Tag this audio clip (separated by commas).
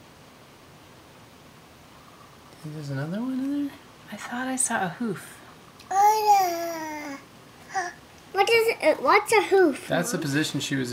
Speech